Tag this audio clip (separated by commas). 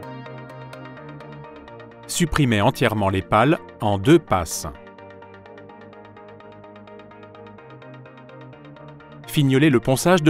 Music, Speech